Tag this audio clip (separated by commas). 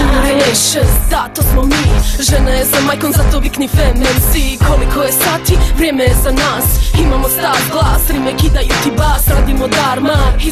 Music